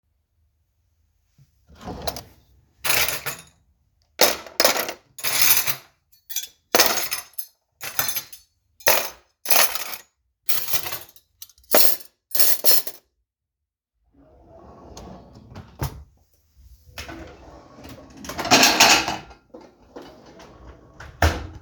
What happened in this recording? I opened a drawer, put in the cutlery, closed it, opened another drawer, put in dishes, closed it, in the background phone rings.